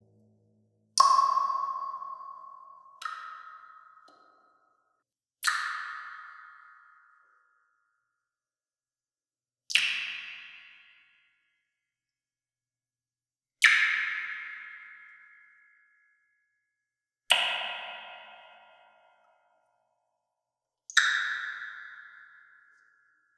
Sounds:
rain, raindrop, water, liquid, drip

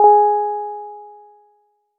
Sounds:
musical instrument, keyboard (musical), music, piano

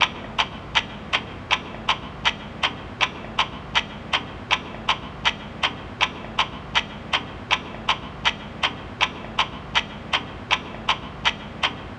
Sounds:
mechanisms, clock

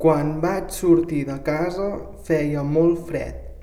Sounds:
speech, human voice

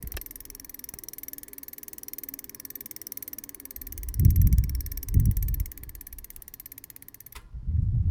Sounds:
vehicle, bicycle

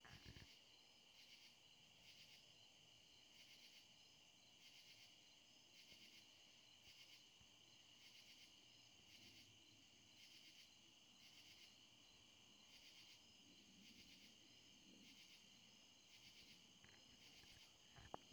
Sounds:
wild animals, insect, cricket, animal

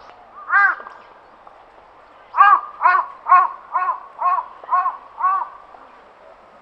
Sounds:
wild animals, crow, animal, bird

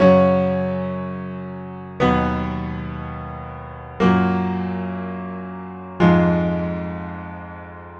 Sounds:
keyboard (musical), piano, music, musical instrument

